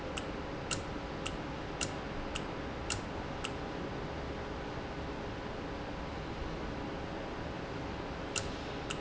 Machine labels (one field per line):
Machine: valve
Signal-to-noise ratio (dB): -6 dB